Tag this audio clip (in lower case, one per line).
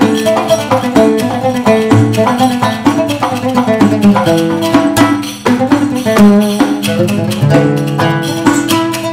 pizzicato